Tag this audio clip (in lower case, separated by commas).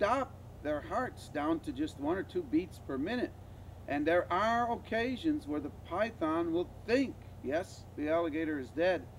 crocodiles hissing